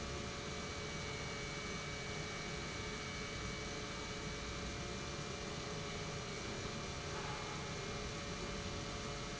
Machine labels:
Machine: pump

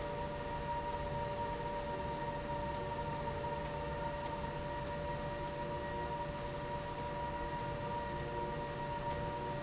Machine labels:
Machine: slide rail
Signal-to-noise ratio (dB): -6 dB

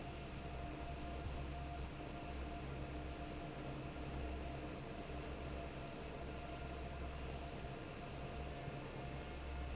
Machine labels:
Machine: fan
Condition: normal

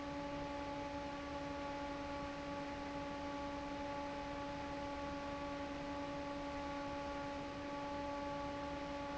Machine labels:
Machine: fan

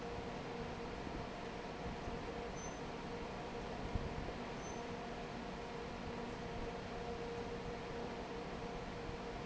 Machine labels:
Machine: fan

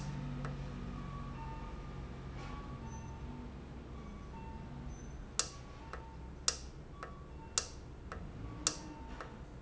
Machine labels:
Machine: valve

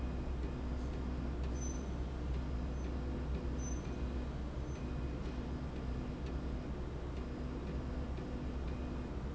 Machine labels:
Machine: slide rail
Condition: normal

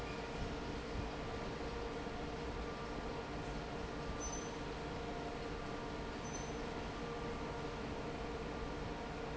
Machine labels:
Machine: fan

